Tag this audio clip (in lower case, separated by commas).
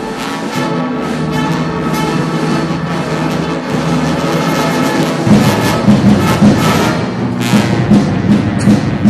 orchestra, music